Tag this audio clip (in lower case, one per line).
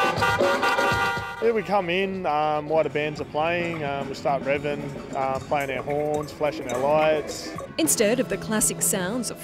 music
speech
car
toot
vehicle